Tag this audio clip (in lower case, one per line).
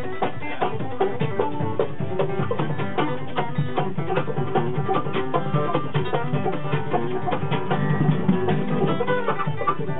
music
bluegrass
country